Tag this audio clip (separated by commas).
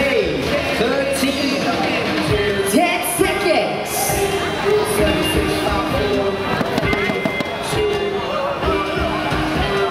Speech, Music, Basketball bounce